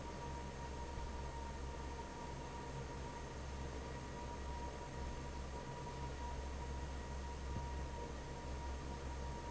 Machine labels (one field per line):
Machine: fan